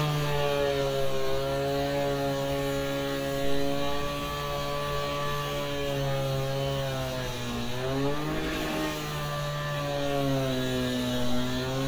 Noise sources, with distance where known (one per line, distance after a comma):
unidentified powered saw, near